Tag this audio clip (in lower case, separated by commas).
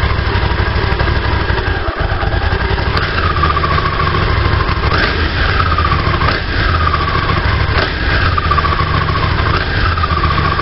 vehicle